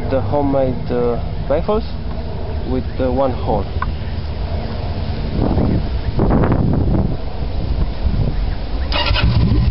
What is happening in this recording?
An adult male is speaking, the wind is blowing, birds are chirping, and a motor vehicle engine starts up